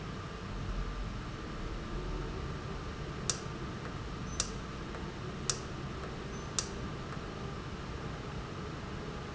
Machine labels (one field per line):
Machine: valve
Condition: normal